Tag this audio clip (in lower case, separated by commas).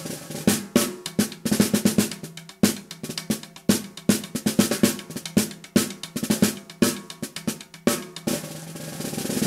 hi-hat, music